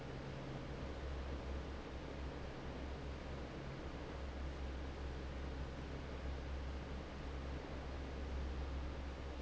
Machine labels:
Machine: fan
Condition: normal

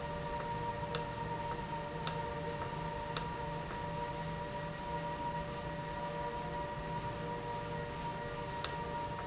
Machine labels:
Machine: valve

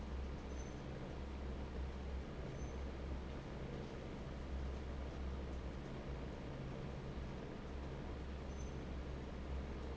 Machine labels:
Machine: fan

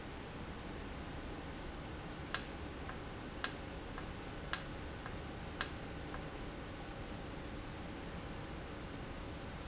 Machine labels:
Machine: valve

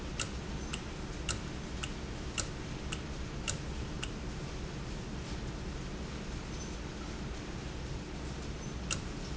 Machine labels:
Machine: valve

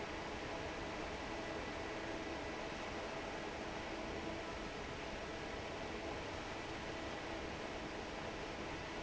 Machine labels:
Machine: fan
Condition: normal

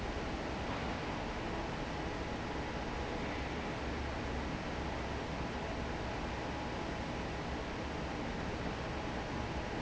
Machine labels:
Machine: fan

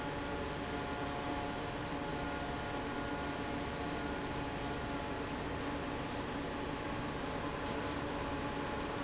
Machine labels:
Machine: fan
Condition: normal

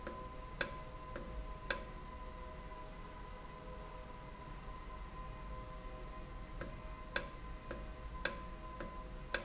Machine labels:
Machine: valve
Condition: normal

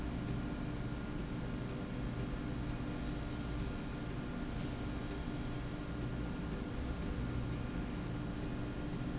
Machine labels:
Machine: slide rail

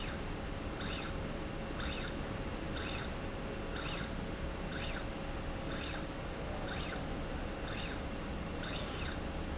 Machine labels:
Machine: slide rail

